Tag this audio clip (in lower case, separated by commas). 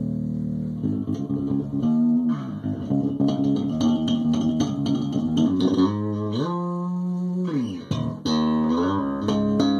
music, electronic tuner, guitar, musical instrument, bass guitar, plucked string instrument